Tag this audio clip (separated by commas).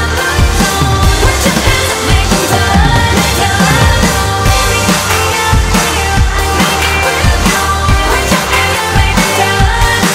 Music